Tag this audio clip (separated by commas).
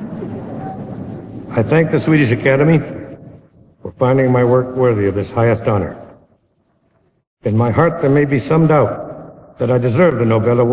man speaking, Narration, Speech